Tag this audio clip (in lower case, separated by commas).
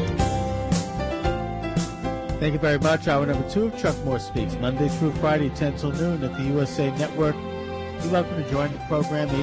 speech, music